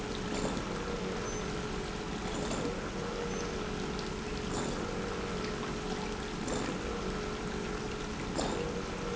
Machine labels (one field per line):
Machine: pump